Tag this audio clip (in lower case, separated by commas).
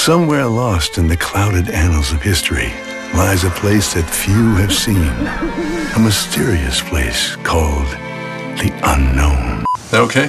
speech, music